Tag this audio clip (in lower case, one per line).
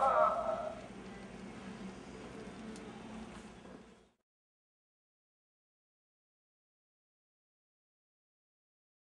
speech